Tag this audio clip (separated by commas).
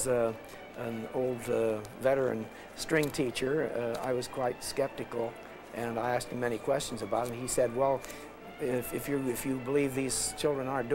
fiddle, Speech, Musical instrument, Music